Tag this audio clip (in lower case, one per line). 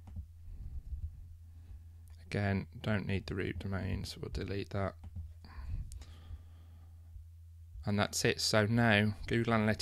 speech